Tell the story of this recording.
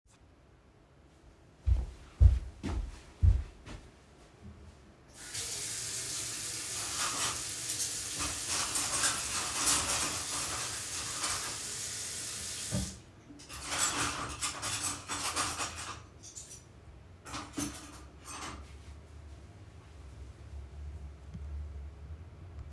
I walked over to the kitchen, where I had turned on the sink to create the sound of flowing water, and started to wash my cutlery so that it would make noise. I turned off the water and put the cutlery back, so it was making noise individually.